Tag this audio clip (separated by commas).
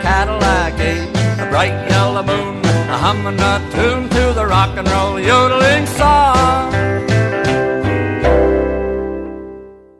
Music